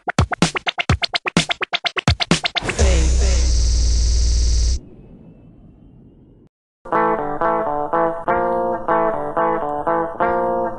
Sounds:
Effects unit, Music

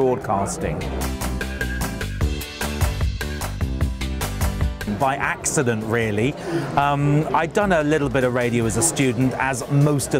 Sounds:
Music, Speech

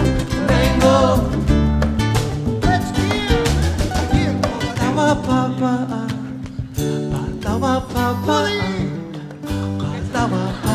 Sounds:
Music, Singing

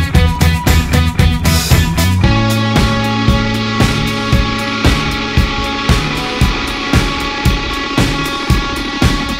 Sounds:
Grunge

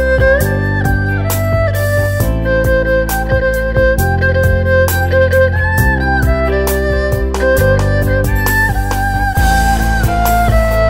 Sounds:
playing erhu

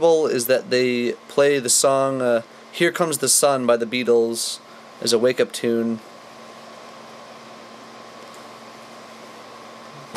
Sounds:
Speech

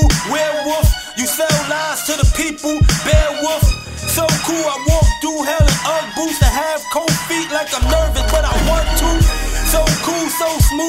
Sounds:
Music, Hip hop music

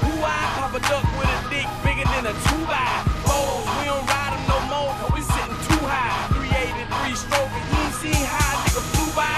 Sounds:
Music

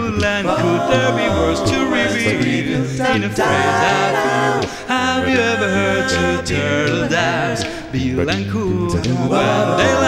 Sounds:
Music

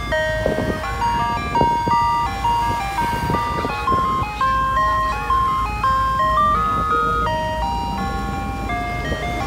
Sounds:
ice cream truck

